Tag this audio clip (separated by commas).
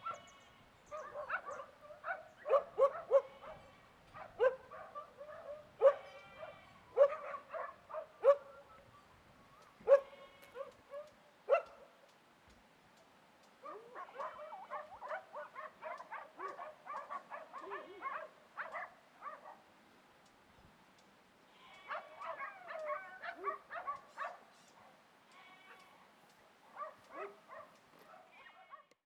Animal, pets, Dog, Bark